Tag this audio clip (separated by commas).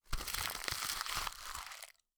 crinkling